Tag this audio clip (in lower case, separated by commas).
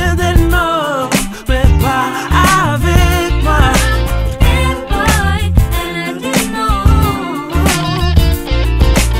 music